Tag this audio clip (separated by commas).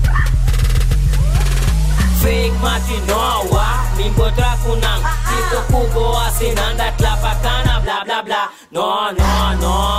Music, Jazz